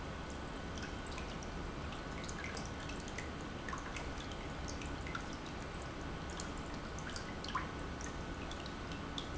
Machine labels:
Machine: pump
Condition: normal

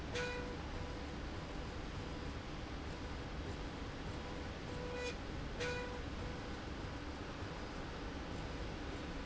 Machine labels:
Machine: slide rail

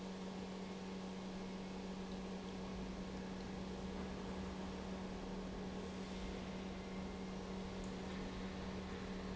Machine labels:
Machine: pump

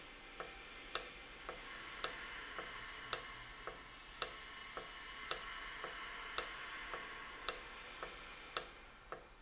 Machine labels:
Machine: valve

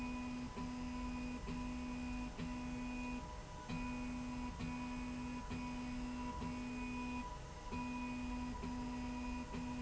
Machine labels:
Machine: slide rail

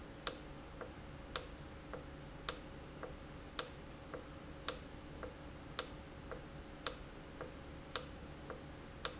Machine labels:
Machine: valve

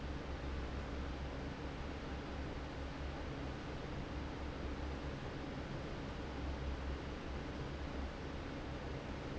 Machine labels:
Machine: fan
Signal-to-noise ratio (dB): 0 dB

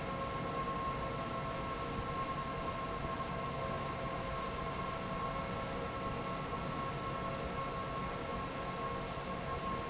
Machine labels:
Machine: fan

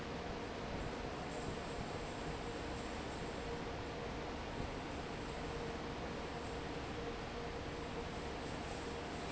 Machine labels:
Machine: fan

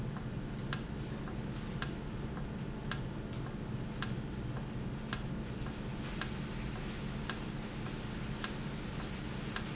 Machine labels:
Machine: valve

